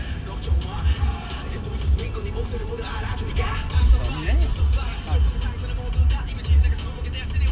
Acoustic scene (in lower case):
car